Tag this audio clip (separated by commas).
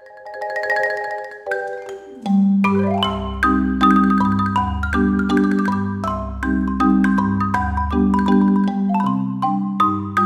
Musical instrument, Music, xylophone, Marimba, Percussion